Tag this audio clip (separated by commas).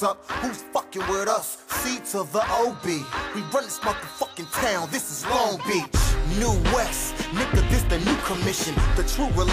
Music